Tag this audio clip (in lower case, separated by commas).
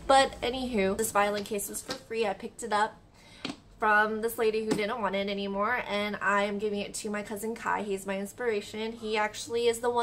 speech